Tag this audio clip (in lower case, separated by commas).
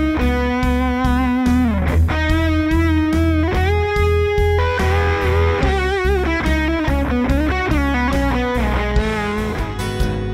electric guitar, guitar, musical instrument, plucked string instrument, music